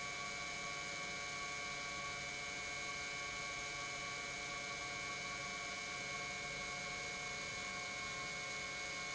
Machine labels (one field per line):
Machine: pump